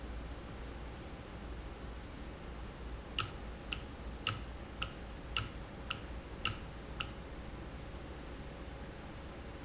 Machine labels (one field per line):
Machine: valve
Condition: normal